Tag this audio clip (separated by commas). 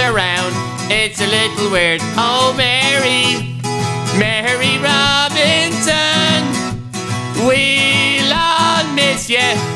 Music